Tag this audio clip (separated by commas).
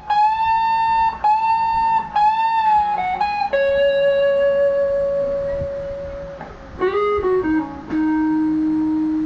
Music, Reverberation